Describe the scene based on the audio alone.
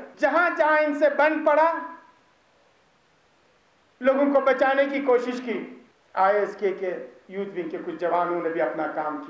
A man is giving an impassioned speech in a foreign language